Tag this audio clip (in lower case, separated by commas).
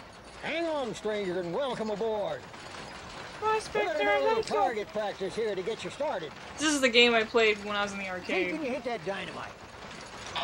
pets, speech, animal